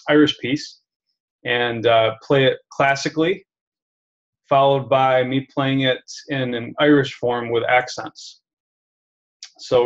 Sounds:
Speech

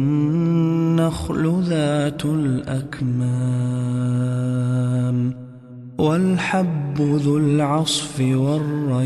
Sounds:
Mantra

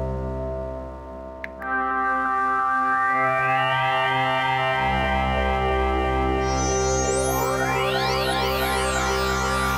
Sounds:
Music

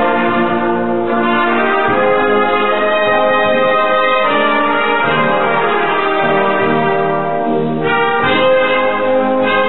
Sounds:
Musical instrument, Trumpet, Music

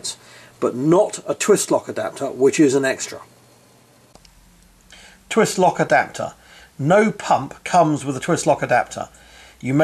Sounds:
Speech

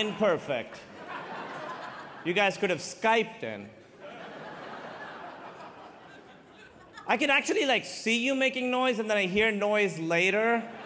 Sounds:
Speech

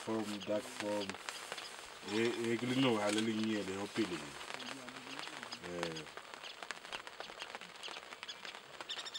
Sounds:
Animal, Speech

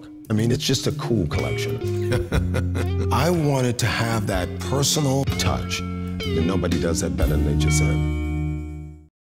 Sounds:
Music, Musical instrument, Plucked string instrument, Speech, Guitar

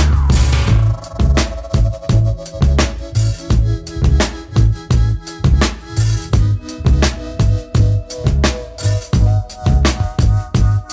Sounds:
Music

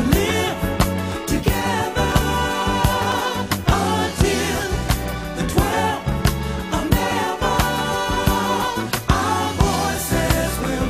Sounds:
Soul music, Music

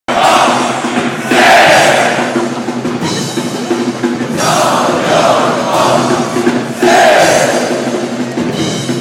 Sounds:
Music, Singing, Cheering

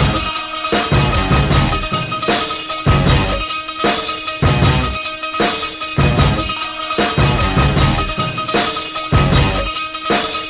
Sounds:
Music

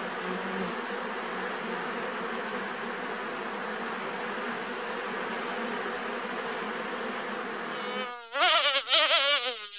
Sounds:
wasp

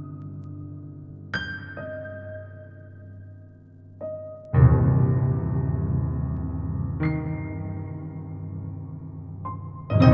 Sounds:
Music

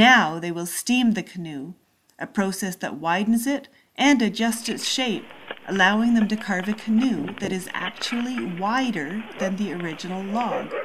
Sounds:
Speech

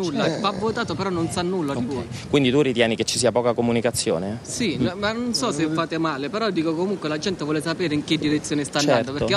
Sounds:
Speech

